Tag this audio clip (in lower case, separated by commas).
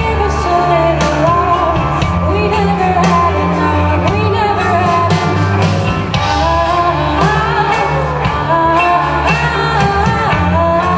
singing, music